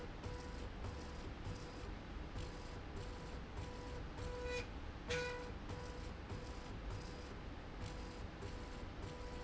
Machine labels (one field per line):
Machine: slide rail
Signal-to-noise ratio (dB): 6 dB